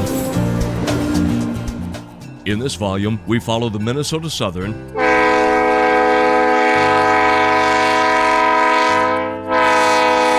A man narrates and then a horn sounds and a train goes down a track